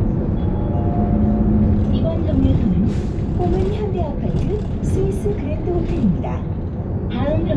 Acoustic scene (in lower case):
bus